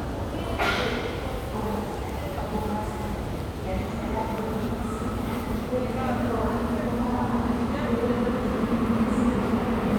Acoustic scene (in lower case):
subway station